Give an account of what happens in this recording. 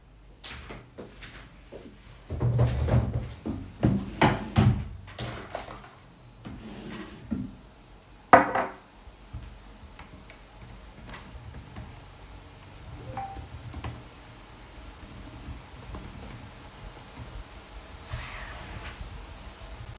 walked to the chair, sat on the chair, opened the drawer, grabbed something from the drawer, began typing on the keyboard then received a notification whilst typing